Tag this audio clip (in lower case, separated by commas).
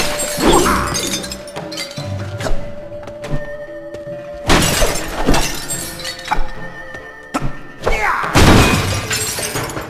thump, music